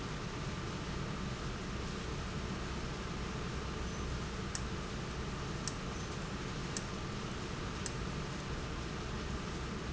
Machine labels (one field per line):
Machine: valve